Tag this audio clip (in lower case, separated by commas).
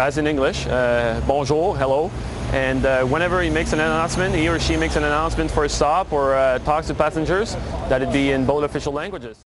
vehicle, speech